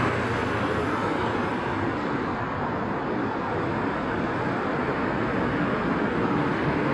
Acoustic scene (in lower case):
street